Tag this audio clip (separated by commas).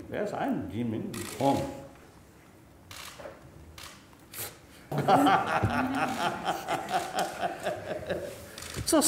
Giggle, Speech